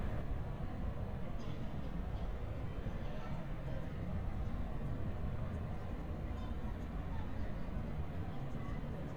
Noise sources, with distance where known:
person or small group talking, far

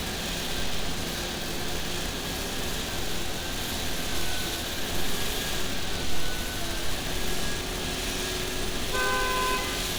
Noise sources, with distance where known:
car horn, near

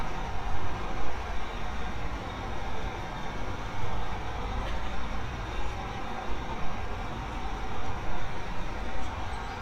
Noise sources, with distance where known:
large-sounding engine, near

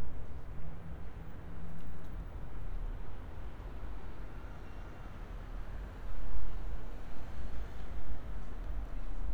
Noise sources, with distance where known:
background noise

